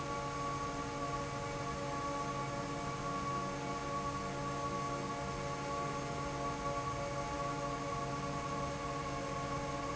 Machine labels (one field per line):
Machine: fan